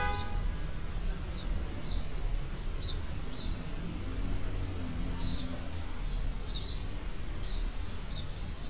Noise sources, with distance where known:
medium-sounding engine; car horn, near

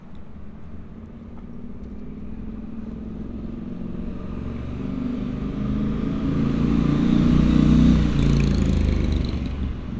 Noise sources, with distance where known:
small-sounding engine, near

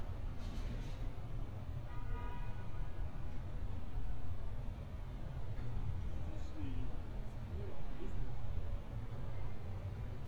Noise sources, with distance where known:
medium-sounding engine; car horn, far

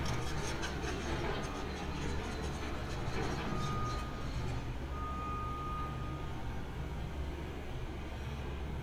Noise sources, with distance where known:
medium-sounding engine; unidentified alert signal, near

